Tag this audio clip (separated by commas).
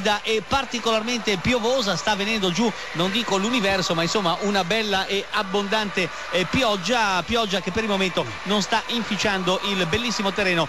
Music, Speech